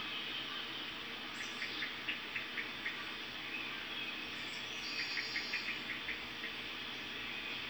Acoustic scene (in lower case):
park